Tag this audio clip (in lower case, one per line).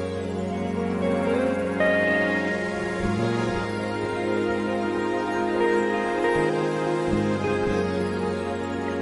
music